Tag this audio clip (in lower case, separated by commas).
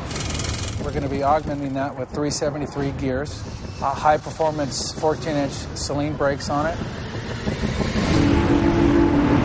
music, speech